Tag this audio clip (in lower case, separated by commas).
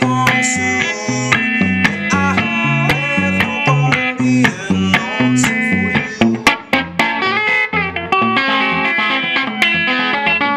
musical instrument, plucked string instrument, electric guitar, guitar, music